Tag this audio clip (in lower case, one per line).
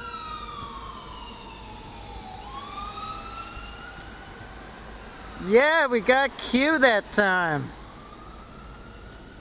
speech
vehicle